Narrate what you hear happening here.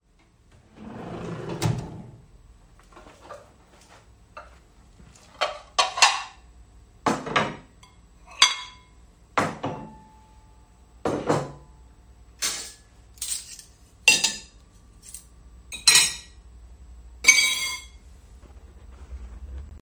I opened the drawer, took the plates out and put them on the table along with some spoons.